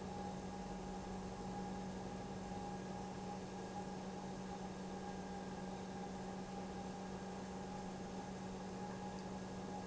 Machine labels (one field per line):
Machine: pump